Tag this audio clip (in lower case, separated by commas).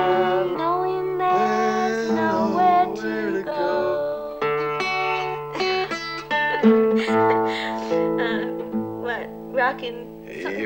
music, speech